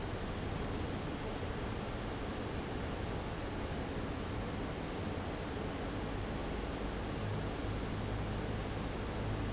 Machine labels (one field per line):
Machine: fan